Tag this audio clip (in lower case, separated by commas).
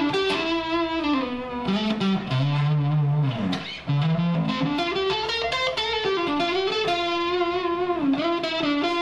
musical instrument, music, plucked string instrument, guitar, electric guitar